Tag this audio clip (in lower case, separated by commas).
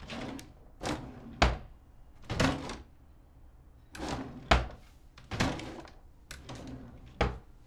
drawer open or close, home sounds